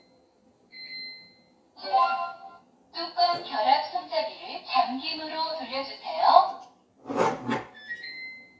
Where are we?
in a kitchen